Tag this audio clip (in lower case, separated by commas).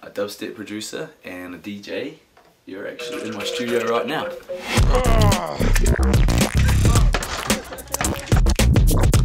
scratching (performance technique)